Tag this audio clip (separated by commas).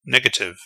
Human voice, Speech, Male speech